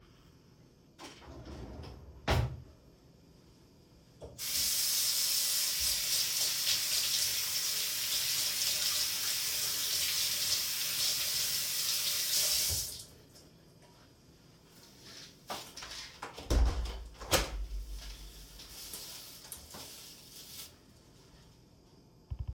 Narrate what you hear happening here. I closed the drawer. I turned on the tap and washed my hands. I pushed the curtains aside and opened the window.